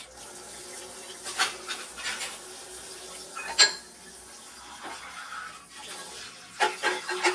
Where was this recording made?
in a kitchen